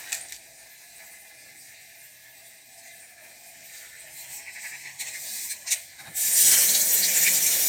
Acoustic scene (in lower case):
kitchen